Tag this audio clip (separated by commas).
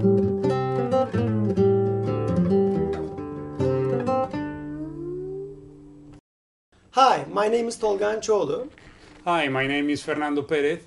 Musical instrument, Speech, Music, Guitar, Plucked string instrument